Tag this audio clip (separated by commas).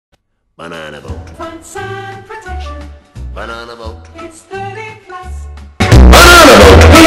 Speech, Music